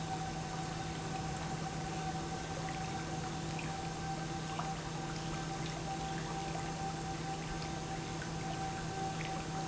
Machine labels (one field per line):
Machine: pump